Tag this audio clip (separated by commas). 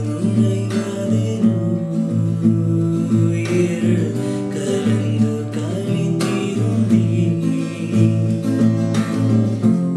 Singing, Plucked string instrument, Guitar, Acoustic guitar, Song, Musical instrument, Music